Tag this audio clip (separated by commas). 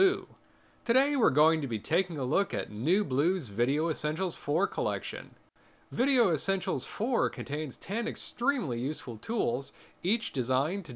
Speech